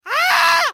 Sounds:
Screaming, Human voice

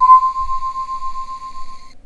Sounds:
Keyboard (musical), Music, Musical instrument

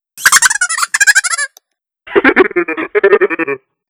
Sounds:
Laughter, Human voice

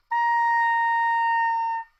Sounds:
Music, Musical instrument, woodwind instrument

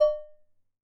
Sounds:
dishes, pots and pans, home sounds

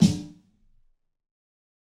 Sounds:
Percussion, Music, Musical instrument, Drum, Snare drum

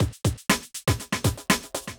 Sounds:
Musical instrument, Percussion, Drum, Music

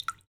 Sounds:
Rain, Raindrop, Water

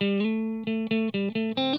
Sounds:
Music, Plucked string instrument, Electric guitar, Musical instrument, Guitar

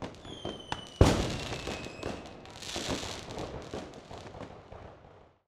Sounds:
Fireworks, Explosion

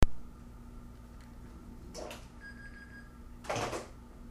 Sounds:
Alarm, Telephone

